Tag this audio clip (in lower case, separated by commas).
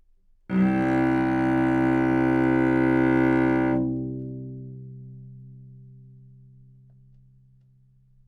music, bowed string instrument, musical instrument